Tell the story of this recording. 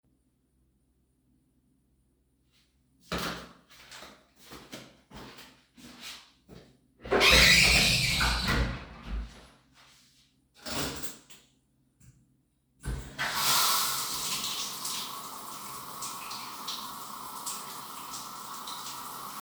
closing the door,going to the shower cabin,closing the shower cabin,turning the water on